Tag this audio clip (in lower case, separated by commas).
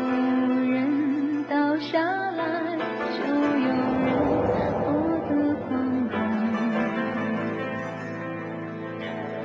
music, sad music